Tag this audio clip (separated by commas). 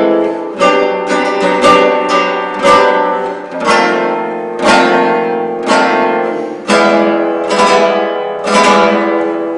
Musical instrument, Guitar, Music, Plucked string instrument